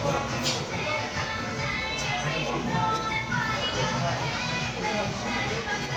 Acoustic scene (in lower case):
crowded indoor space